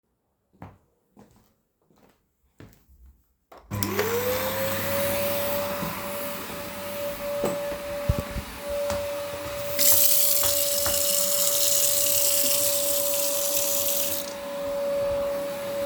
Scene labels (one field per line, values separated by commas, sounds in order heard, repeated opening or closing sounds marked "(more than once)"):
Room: living room, kitchen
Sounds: footsteps, vacuum cleaner, running water